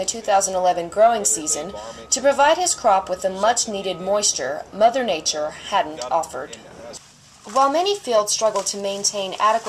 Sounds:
speech

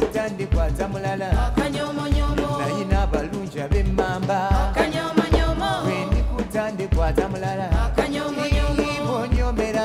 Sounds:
salsa music, music

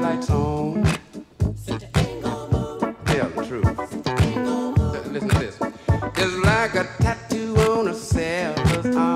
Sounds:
music, musical instrument

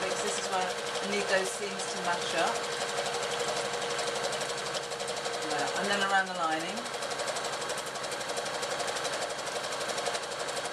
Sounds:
sewing machine

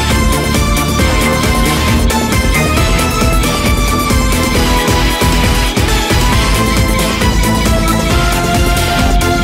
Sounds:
music

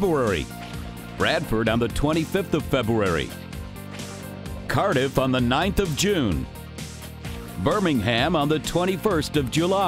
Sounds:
music, speech

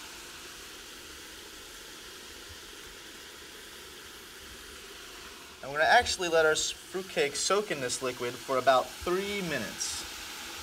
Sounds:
speech, liquid

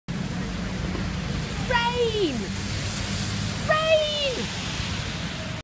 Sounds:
rain

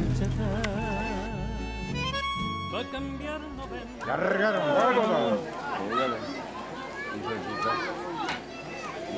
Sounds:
speech, music

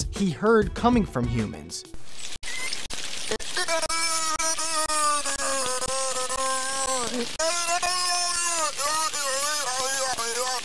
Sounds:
speech, music

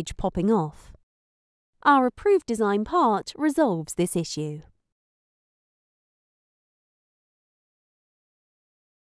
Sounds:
speech

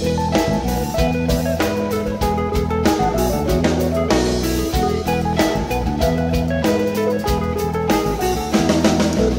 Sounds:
music

